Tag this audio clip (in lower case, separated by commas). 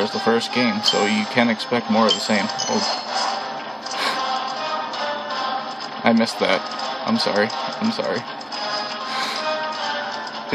music, speech